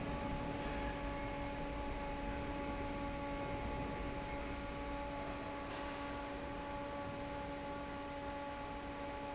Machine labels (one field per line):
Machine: fan